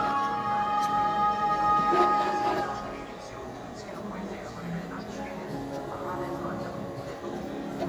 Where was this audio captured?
in a cafe